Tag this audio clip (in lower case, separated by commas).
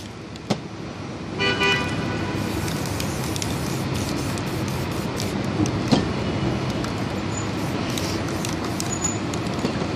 spray